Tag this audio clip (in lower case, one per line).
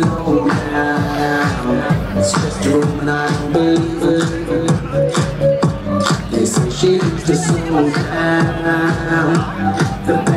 music
speech